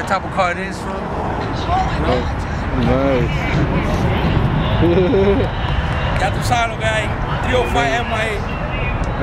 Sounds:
Speech, Whoop

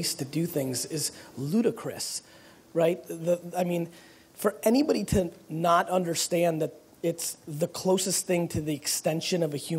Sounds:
Speech

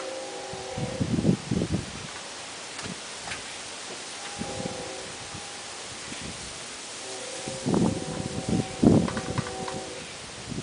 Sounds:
Wind

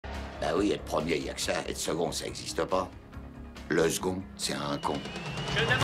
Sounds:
Speech, Music

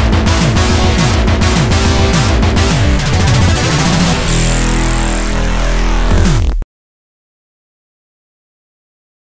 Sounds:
Music

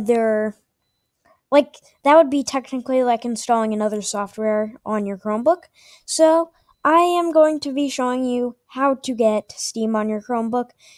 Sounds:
Speech

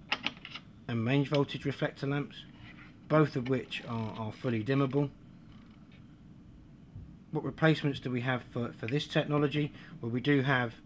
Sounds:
Speech

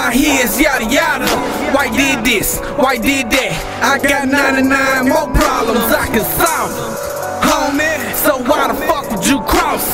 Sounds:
Music

